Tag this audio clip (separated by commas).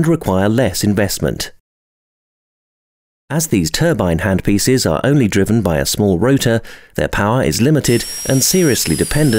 Speech